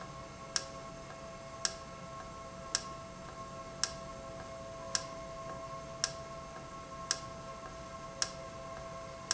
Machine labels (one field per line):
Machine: valve